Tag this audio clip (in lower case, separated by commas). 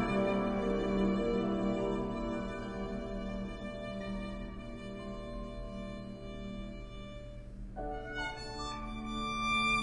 music, musical instrument, violin